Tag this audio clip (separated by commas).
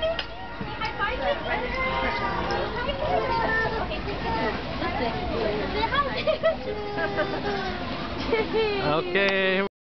Speech